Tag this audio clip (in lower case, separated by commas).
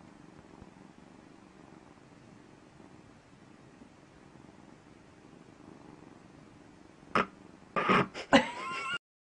domestic animals, cat, animal, caterwaul